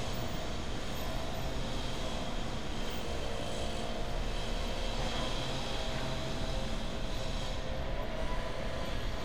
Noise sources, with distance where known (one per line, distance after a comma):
unidentified powered saw